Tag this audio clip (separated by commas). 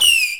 Fireworks, Explosion